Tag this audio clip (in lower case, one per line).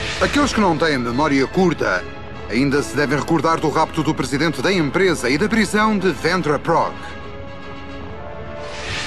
music
speech